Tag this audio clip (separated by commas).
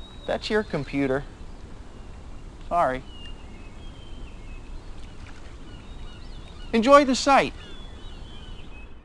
Speech